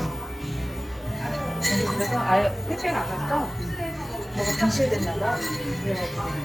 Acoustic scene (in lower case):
cafe